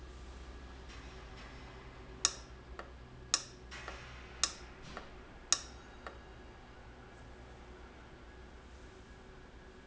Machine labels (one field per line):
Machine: valve